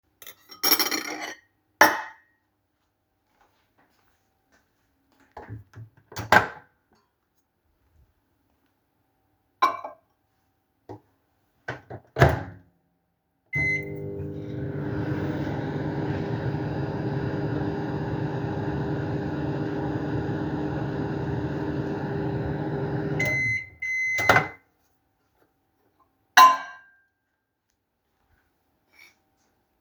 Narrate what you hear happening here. I picked up the dish and walked to the microwave. I opened the door, placed the dish inside, closed the microwave door, and turned it on.